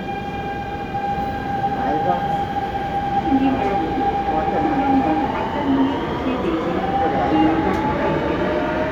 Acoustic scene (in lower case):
subway train